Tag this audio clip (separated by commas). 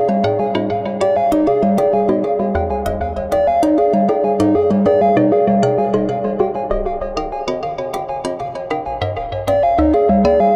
Music, Video game music